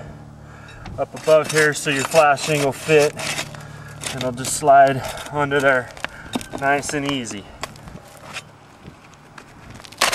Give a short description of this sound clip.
A man talks while moving metallic objects